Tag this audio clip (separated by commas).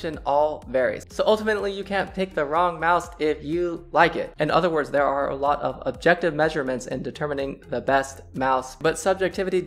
Speech, Music